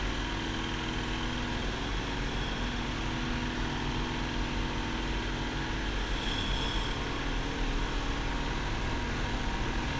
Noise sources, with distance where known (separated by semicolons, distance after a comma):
rock drill